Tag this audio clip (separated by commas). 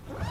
Domestic sounds, Zipper (clothing)